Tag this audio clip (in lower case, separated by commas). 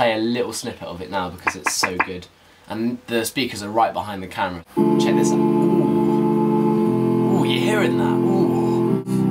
speech, music